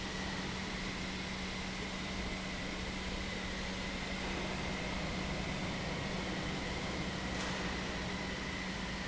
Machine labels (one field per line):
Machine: pump